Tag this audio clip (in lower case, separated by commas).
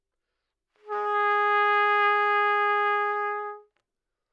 brass instrument, trumpet, music, musical instrument